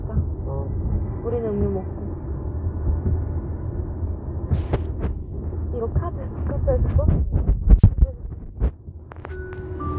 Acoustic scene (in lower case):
car